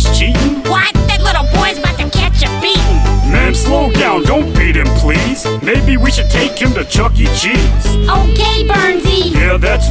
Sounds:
music, rapping

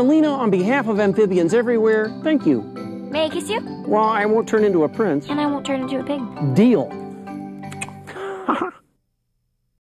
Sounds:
speech, music

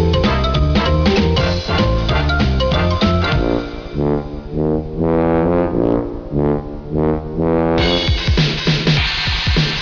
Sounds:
playing trombone, brass instrument, trombone

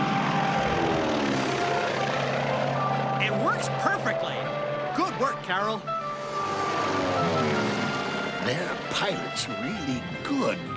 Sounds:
music, speech

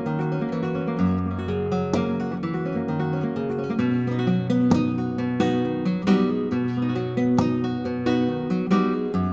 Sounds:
musical instrument, guitar, music, flamenco

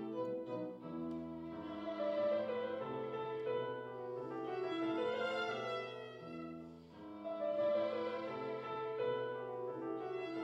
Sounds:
music, musical instrument, violin

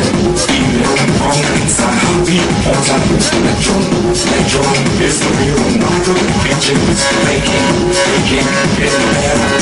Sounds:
dance music, music

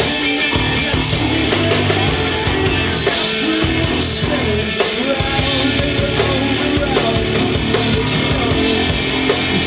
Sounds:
independent music, rock and roll, rock music, music

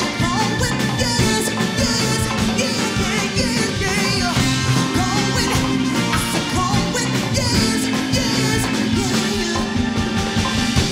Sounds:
singing, rock and roll, music

